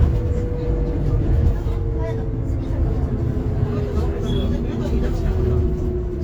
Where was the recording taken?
on a bus